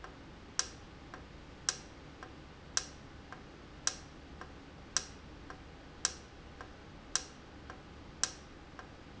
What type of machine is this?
valve